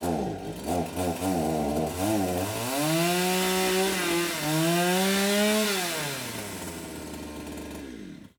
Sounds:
sawing, engine, tools

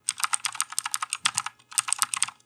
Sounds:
typing, computer keyboard, home sounds

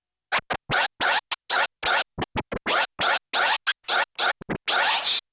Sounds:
music, musical instrument, scratching (performance technique)

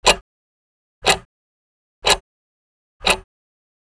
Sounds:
tick-tock, clock, mechanisms

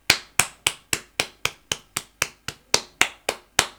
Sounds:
hands, clapping

